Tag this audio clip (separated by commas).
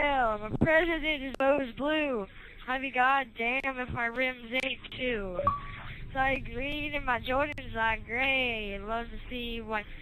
Speech